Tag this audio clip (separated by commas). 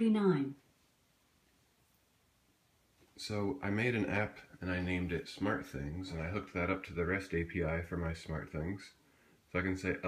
Speech